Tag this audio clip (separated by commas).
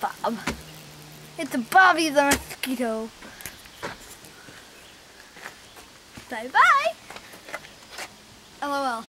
Speech